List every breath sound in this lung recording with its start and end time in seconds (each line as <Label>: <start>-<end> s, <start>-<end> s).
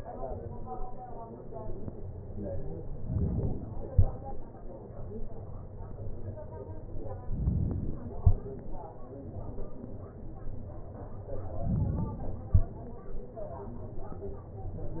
Inhalation: 2.99-3.93 s, 7.26-8.12 s, 11.54-12.42 s